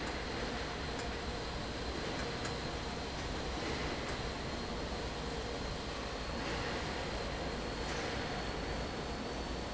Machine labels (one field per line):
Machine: fan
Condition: normal